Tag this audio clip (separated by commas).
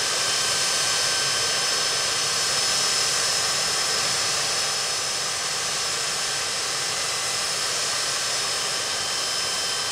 Aircraft engine, Vehicle